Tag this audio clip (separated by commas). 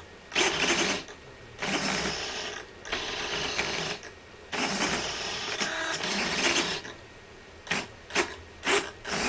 Creak, Gears, Mechanisms